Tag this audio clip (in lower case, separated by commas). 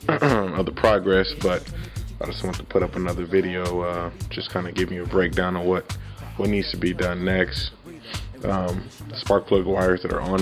music, speech